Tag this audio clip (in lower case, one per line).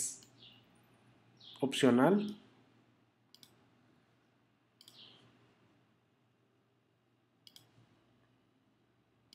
speech